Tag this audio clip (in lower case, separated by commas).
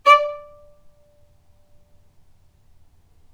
musical instrument, music, bowed string instrument